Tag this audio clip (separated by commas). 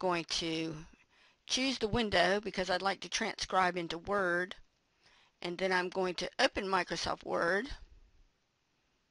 Speech, woman speaking